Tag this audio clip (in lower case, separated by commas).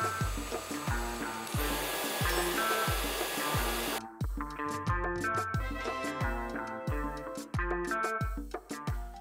vacuum cleaner cleaning floors